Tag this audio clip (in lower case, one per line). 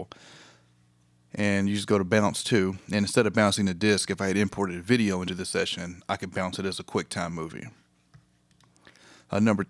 speech